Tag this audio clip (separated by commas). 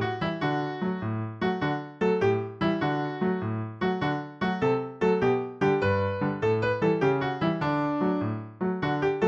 Music